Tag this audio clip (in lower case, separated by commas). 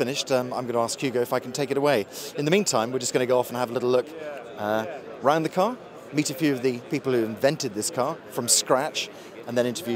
speech